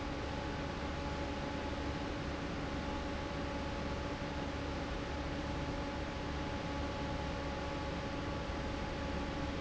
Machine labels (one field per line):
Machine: fan